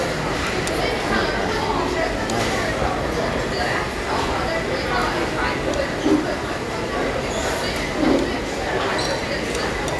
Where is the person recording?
in a crowded indoor space